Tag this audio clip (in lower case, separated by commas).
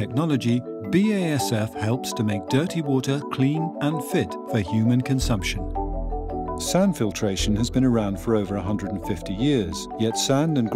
speech, music